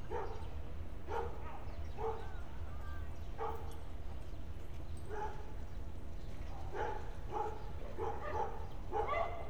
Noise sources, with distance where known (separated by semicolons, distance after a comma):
dog barking or whining, far